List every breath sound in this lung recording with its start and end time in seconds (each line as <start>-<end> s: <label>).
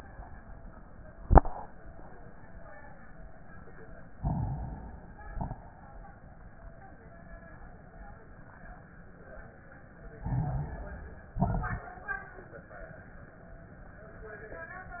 4.14-5.28 s: inhalation
5.28-5.71 s: exhalation
5.28-5.71 s: crackles
10.23-11.33 s: inhalation
11.37-11.86 s: exhalation
11.37-11.86 s: crackles